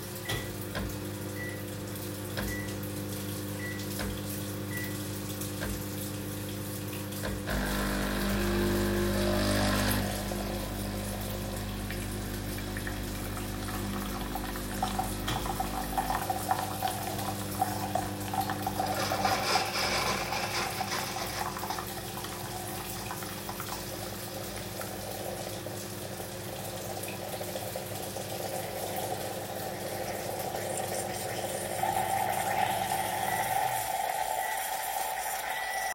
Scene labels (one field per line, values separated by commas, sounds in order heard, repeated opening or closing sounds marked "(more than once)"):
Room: kitchen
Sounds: microwave, running water, coffee machine